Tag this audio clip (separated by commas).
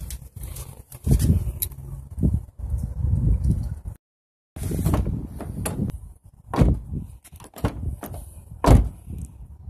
opening or closing car doors